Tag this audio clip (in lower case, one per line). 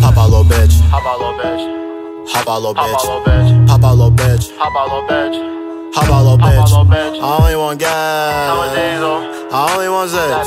music